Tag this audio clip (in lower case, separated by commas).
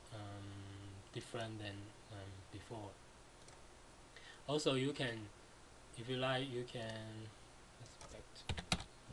typing, speech, computer keyboard